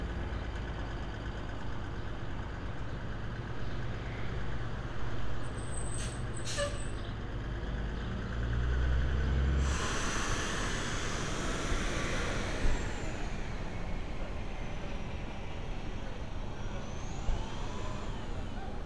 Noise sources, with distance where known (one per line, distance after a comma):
large-sounding engine